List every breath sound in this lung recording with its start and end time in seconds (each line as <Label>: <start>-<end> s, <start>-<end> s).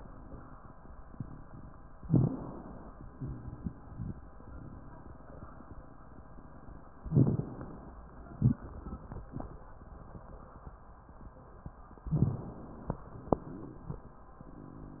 Inhalation: 2.03-3.11 s, 7.11-8.01 s, 12.05-13.01 s
Exhalation: 3.15-4.18 s, 8.30-9.64 s, 13.02-14.36 s
Crackles: 2.07-2.41 s, 7.05-7.47 s, 8.34-9.58 s, 12.07-12.40 s